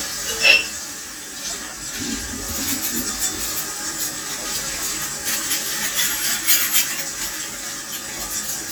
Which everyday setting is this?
kitchen